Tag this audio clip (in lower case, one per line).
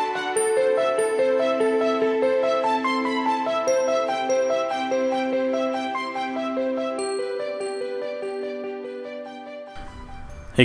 music